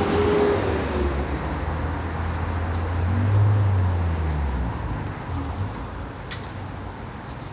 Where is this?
on a street